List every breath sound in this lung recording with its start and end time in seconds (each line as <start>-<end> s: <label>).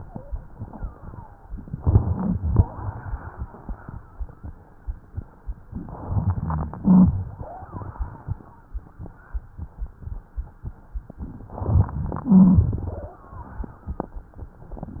1.76-2.35 s: inhalation
1.76-2.35 s: crackles
2.39-2.73 s: crackles
2.39-3.36 s: exhalation
6.04-6.83 s: inhalation
6.04-6.83 s: crackles
6.85-7.23 s: crackles
6.85-7.74 s: exhalation
7.34-7.72 s: wheeze
11.46-12.31 s: inhalation
11.46-12.31 s: crackles
12.31-13.17 s: exhalation
12.31-13.17 s: crackles